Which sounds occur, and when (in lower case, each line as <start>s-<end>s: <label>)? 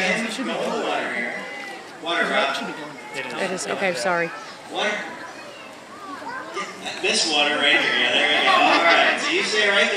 0.0s-1.3s: male speech
0.0s-9.9s: speech noise
0.0s-9.9s: conversation
1.3s-1.8s: shout
2.0s-2.7s: male speech
3.1s-4.3s: female speech
4.7s-5.3s: male speech
5.9s-6.7s: kid speaking
6.5s-9.9s: male speech
7.8s-8.5s: kid speaking
9.1s-9.9s: laughter